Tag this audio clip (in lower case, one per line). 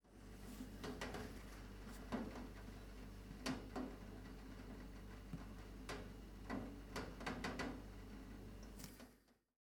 rain
water